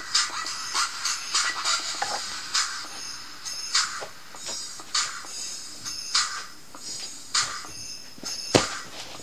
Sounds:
Music

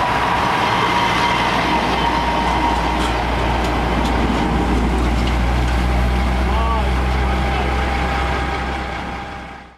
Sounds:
Vehicle, Truck

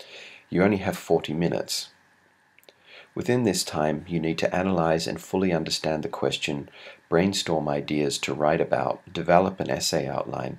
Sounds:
Speech

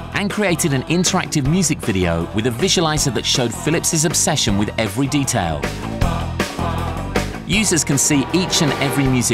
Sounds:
Music, Speech

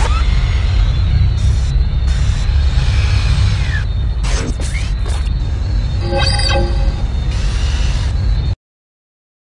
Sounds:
Music

